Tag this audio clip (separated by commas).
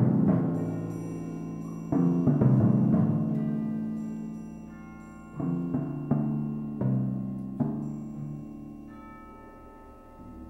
Music